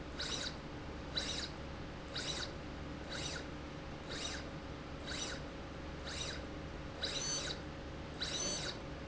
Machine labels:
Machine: slide rail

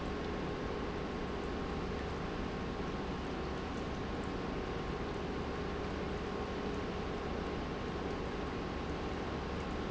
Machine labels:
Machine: pump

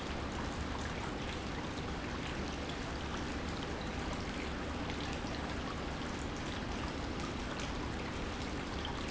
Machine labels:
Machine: pump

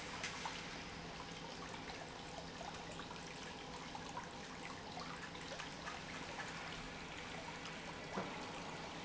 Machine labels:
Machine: pump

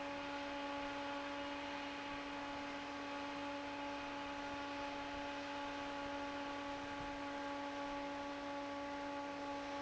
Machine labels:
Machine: fan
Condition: normal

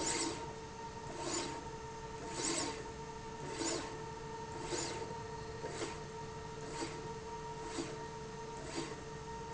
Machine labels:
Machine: slide rail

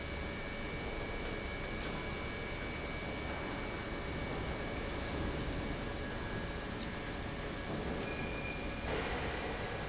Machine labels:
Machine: pump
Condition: normal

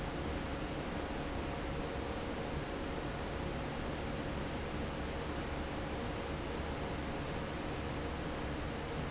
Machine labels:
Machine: fan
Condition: normal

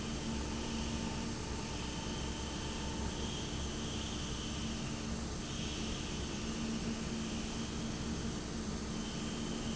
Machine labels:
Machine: fan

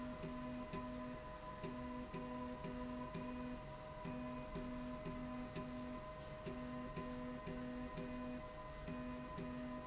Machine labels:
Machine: slide rail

